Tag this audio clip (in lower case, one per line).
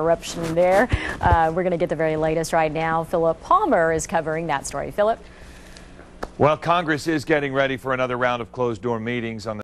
speech